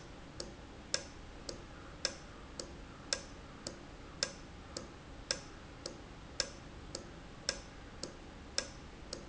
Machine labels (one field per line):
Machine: valve